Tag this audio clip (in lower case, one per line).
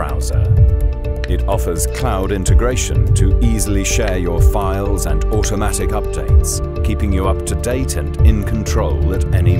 speech
music